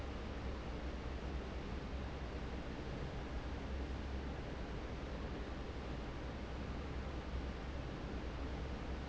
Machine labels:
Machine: fan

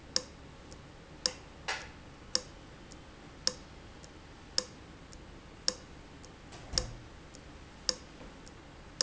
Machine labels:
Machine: valve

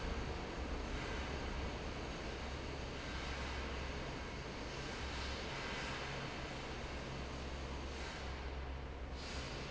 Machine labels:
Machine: fan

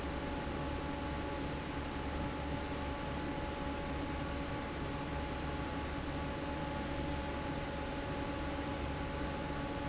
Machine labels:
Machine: fan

